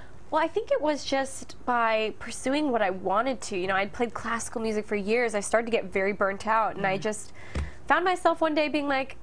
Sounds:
speech

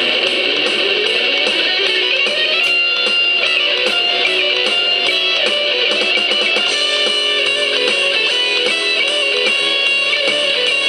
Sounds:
musical instrument
music
plucked string instrument
guitar
strum

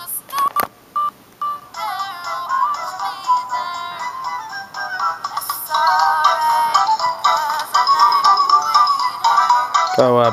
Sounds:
music
inside a small room
speech

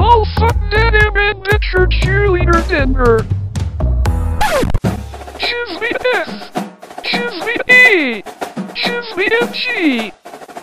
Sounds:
speech
music

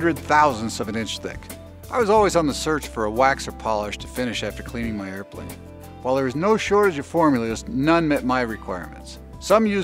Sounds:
speech
music

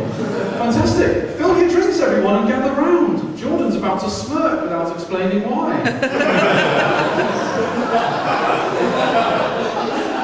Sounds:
man speaking
speech

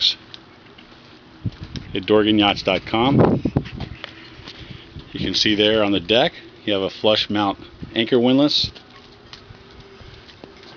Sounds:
speech

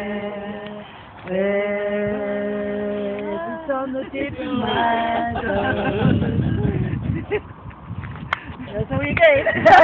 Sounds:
speech

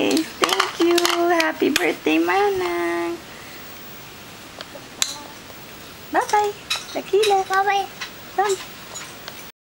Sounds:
speech
female singing

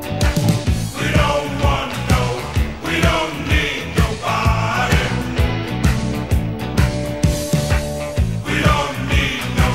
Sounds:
music

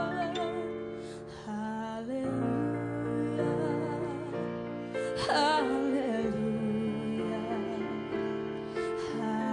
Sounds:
female singing
music

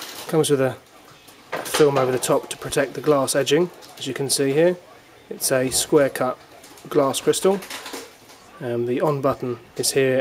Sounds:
speech

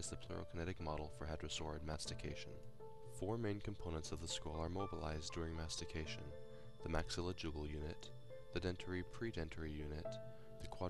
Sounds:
music
speech

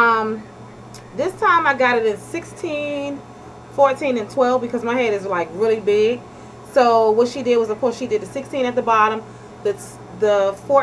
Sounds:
speech

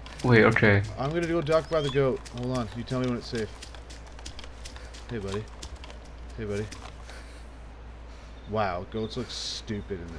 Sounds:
speech

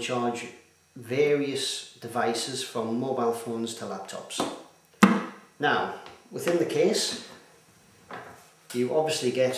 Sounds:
wood

